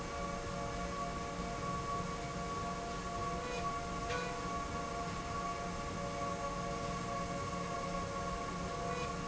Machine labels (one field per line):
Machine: slide rail